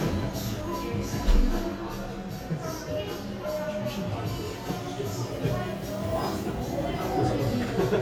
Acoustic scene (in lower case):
crowded indoor space